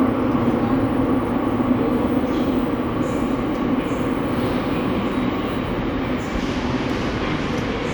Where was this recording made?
in a subway station